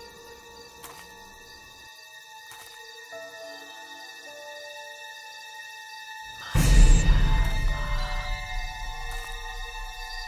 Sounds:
Music

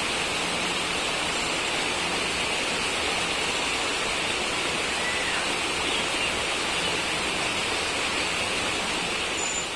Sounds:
outside, rural or natural

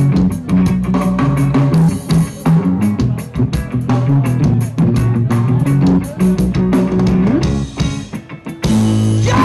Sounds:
Tender music, Music

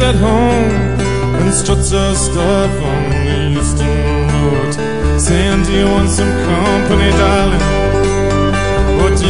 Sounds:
Music

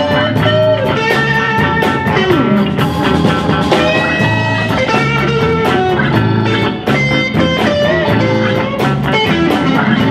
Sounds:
Music

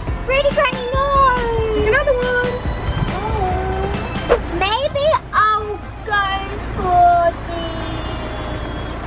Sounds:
ice cream truck

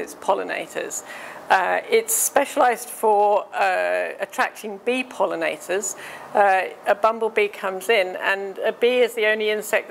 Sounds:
Speech

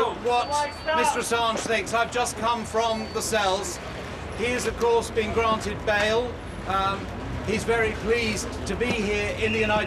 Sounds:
Speech

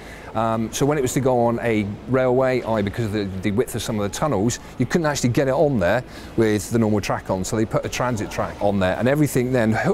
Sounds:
Speech

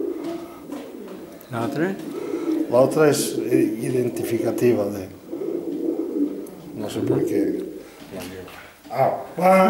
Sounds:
Speech, Bird, inside a small room, dove

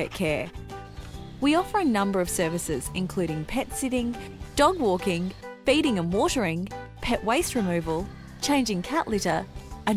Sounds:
Speech, Music

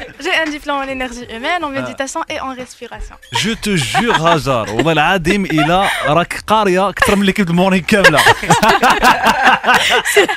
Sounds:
Speech, Music

